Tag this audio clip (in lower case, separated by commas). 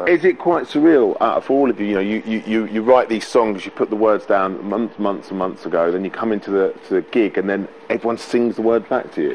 speech